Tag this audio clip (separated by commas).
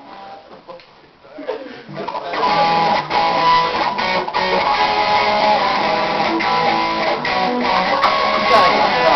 Speech, Music